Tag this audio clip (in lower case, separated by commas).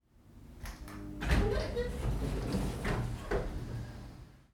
sliding door, door, domestic sounds